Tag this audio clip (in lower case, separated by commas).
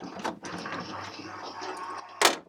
door, domestic sounds, sliding door